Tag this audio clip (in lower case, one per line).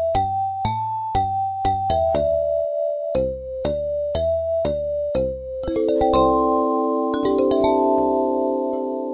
reverberation
music